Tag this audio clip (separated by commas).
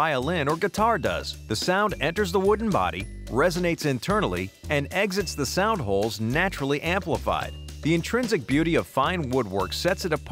Music, Speech